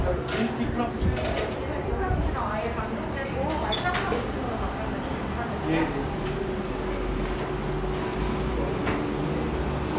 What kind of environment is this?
cafe